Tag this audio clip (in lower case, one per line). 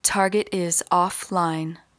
woman speaking
human voice
speech